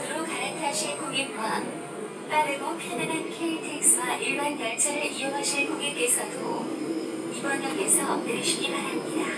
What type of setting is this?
subway train